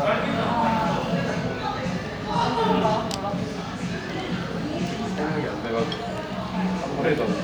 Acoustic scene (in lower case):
cafe